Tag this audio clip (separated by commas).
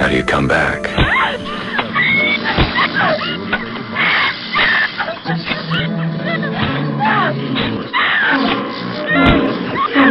Speech, Music